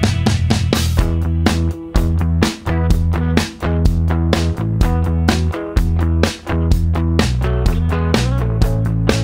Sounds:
music

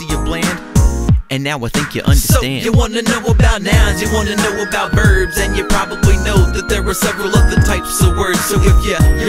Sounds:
music

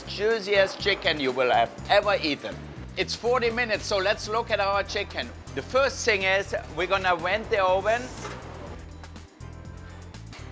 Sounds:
speech
music

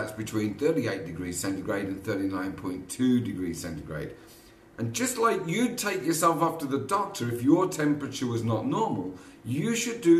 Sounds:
speech

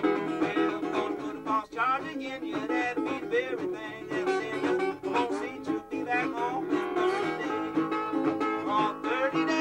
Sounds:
guitar
musical instrument
banjo
plucked string instrument
country
music

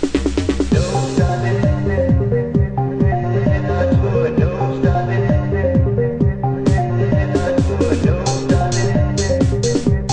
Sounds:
electronica
electronic music
music

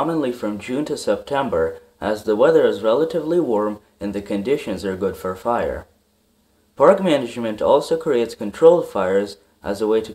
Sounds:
speech

